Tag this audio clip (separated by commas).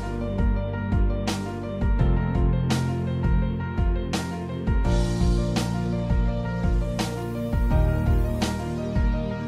Music